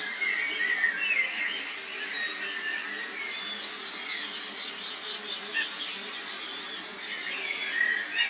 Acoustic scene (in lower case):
park